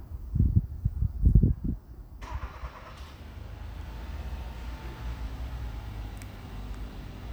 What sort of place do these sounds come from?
residential area